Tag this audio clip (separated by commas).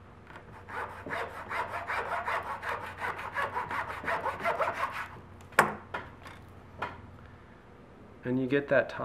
Speech